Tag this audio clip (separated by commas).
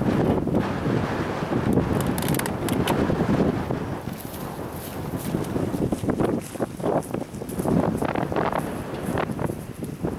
Wind, Wind noise (microphone)